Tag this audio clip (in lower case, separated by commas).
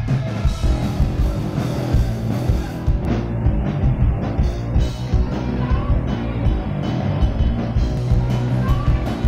rock music, music, musical instrument, speech, guitar, singing